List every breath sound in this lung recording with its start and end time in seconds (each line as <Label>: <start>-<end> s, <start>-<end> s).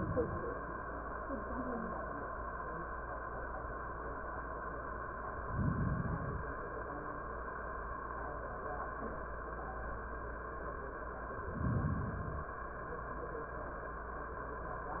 Inhalation: 5.29-6.61 s, 11.38-12.55 s